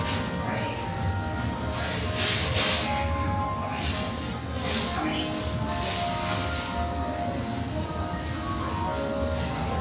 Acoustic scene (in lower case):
cafe